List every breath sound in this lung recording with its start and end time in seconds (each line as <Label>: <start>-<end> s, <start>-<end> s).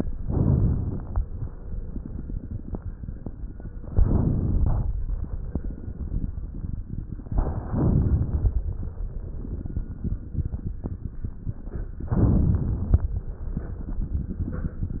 Inhalation: 0.19-1.12 s, 4.00-4.93 s, 7.27-8.67 s
Crackles: 0.19-1.12 s, 4.00-4.93 s, 7.27-8.67 s, 12.07-13.00 s